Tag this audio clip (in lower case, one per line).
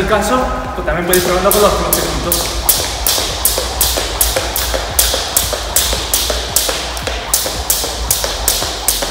rope skipping